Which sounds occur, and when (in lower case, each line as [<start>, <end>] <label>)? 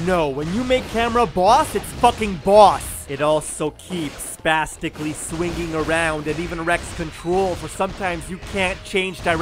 [0.00, 9.41] video game sound
[0.05, 2.80] male speech
[3.04, 9.41] male speech